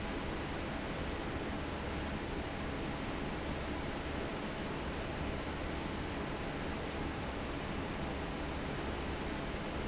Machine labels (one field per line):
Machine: fan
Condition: normal